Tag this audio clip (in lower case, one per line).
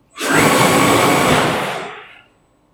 mechanisms